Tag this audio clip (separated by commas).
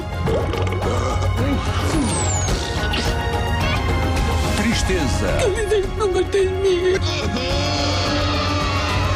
Music, Speech